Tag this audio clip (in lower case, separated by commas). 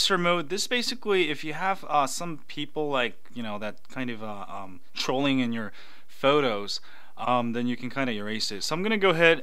speech